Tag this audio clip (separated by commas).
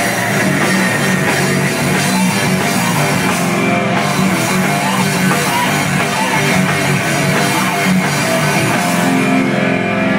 Heavy metal, Music